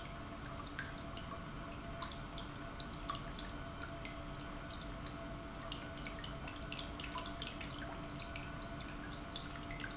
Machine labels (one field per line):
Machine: pump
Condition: normal